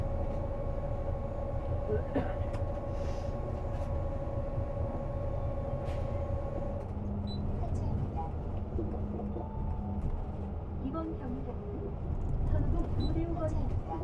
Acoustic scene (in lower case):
bus